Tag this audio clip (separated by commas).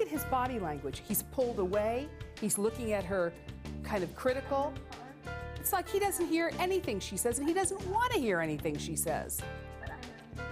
Music, Speech